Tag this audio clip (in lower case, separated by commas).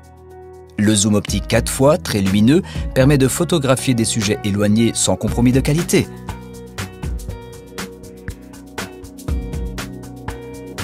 music, speech